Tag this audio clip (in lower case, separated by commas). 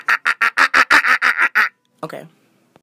human voice, laughter